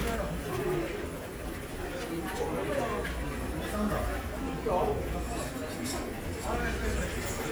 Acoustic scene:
crowded indoor space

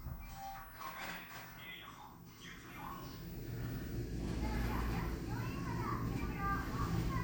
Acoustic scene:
elevator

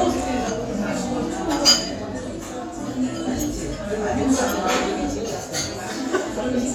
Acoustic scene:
restaurant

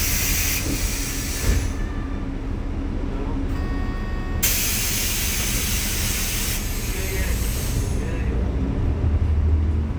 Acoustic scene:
bus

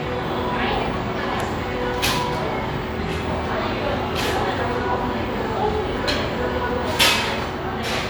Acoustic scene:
restaurant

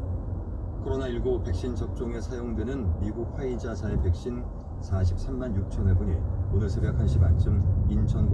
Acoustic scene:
car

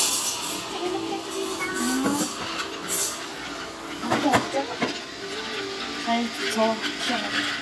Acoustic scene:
cafe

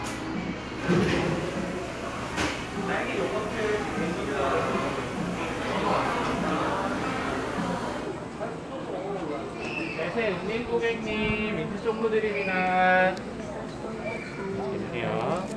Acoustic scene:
cafe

